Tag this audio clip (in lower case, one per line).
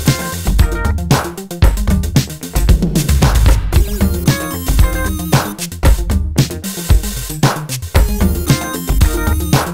music
bass drum
drum kit
musical instrument